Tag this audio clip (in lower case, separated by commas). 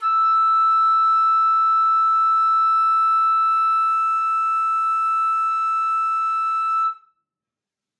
woodwind instrument, musical instrument, music